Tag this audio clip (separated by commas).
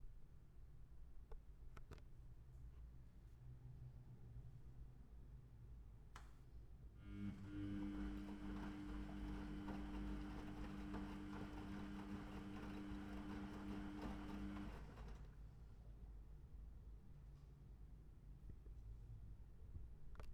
Engine